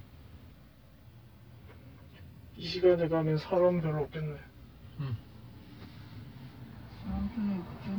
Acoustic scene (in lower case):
car